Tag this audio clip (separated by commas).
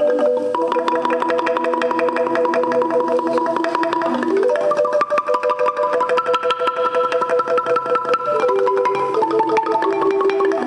xylophone, Marimba, Music